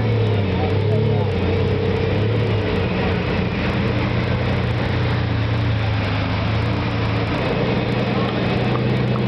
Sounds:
Vehicle, Car, auto racing

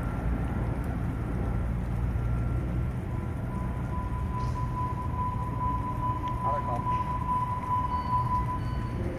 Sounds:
Vehicle, Speech

